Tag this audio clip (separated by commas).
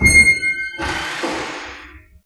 Squeak